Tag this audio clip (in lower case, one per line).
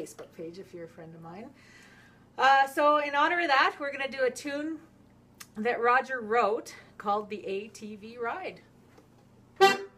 speech
musical instrument
music
violin